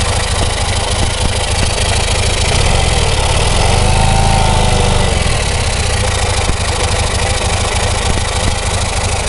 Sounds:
vroom, Idling, Engine, Vehicle, Medium engine (mid frequency)

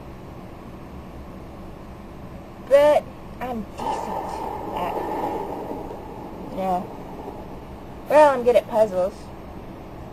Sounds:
Speech

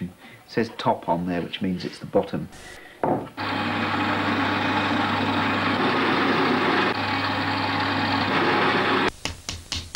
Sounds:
Television

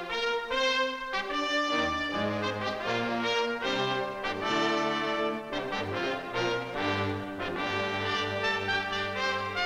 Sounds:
Brass instrument, Music

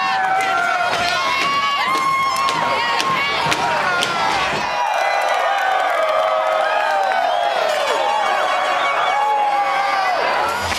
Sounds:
Cheering, Crowd

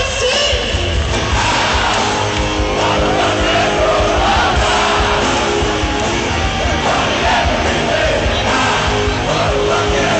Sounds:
Rock and roll, Music

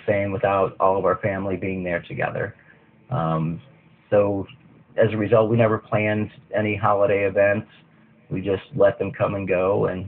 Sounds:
Speech

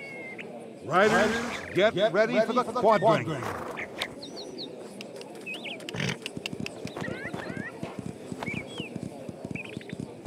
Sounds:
outside, rural or natural, Horse, Speech, Animal

